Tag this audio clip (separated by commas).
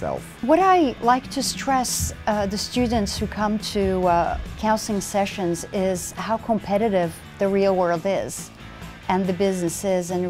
Speech, Music